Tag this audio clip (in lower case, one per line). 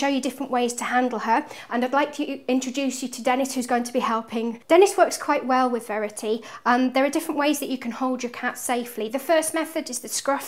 speech